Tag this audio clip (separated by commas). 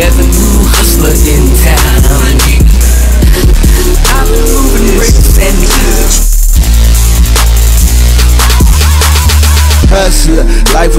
Rapping, Hip hop music, Music